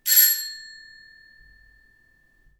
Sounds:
alarm, door, home sounds, doorbell

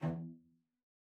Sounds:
bowed string instrument, music, musical instrument

